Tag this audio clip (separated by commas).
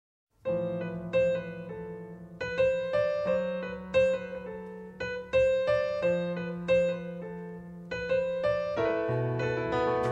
Music, Piano